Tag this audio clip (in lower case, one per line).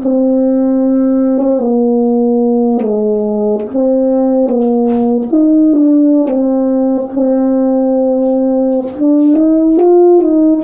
playing french horn